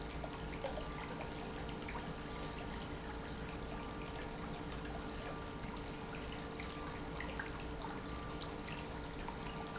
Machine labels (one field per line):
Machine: pump